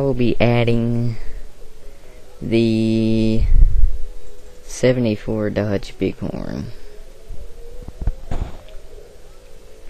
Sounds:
speech

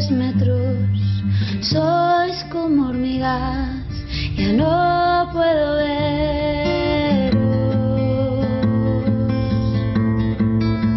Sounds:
music

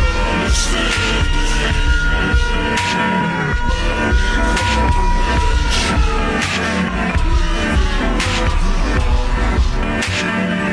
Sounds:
music

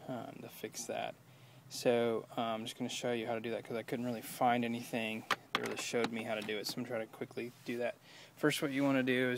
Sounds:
speech

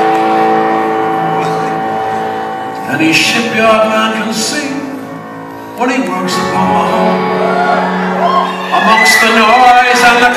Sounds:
music
male singing

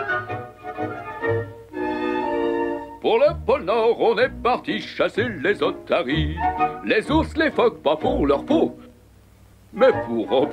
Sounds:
music

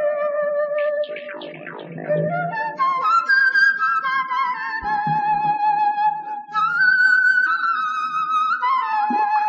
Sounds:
music

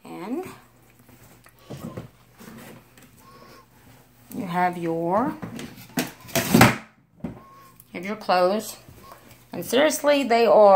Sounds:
speech

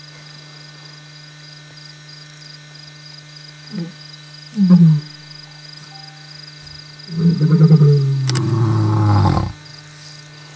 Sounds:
lions roaring

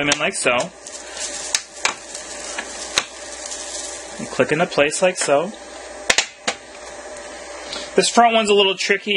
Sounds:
speech

